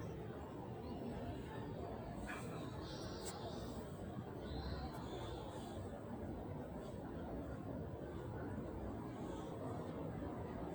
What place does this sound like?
residential area